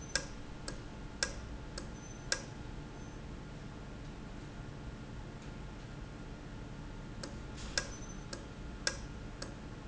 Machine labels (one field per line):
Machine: valve